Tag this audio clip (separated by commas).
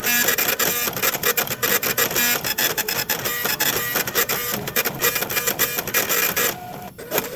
Printer, Mechanisms